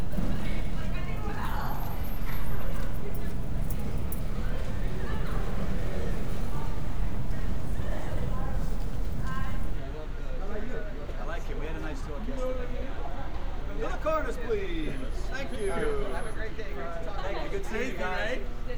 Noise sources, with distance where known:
person or small group talking

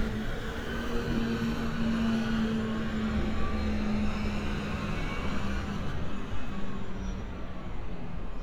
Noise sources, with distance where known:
large-sounding engine, near

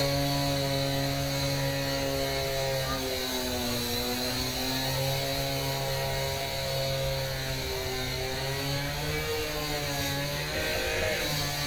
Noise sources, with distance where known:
unidentified powered saw, near

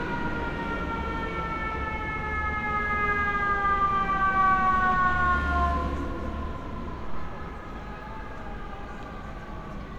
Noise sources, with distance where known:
unidentified alert signal, near

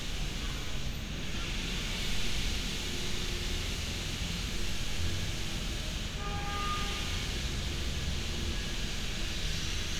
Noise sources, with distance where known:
engine of unclear size

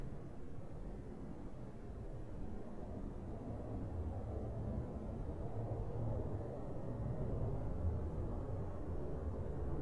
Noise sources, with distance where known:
background noise

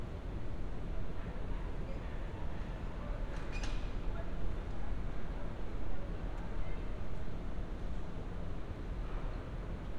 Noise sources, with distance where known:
person or small group talking

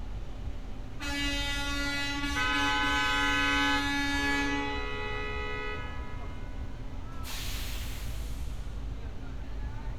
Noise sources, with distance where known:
car horn, near

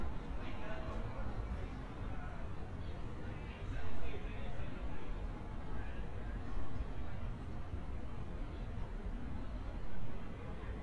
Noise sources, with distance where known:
person or small group talking, far

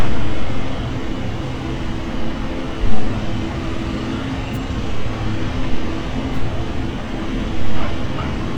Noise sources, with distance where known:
unidentified impact machinery

